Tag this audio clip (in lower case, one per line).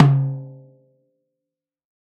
drum
musical instrument
music
snare drum
percussion